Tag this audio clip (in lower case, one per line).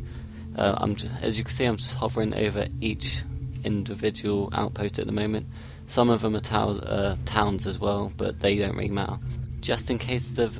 speech